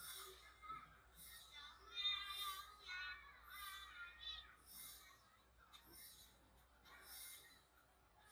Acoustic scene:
residential area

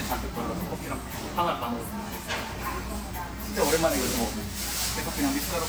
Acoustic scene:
restaurant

